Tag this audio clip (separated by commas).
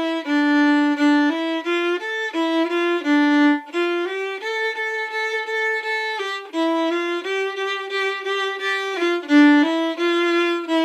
Music, Violin, Musical instrument, playing violin